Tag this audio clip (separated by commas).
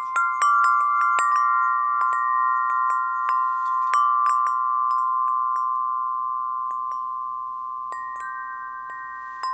Wind chime, Chime